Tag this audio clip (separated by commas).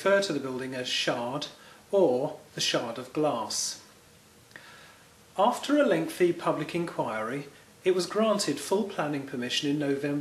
Speech